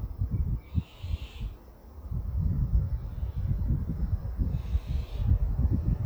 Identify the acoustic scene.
residential area